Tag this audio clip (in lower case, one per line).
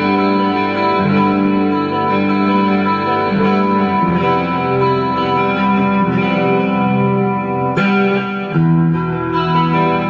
musical instrument
electric guitar
strum
guitar
acoustic guitar
plucked string instrument
music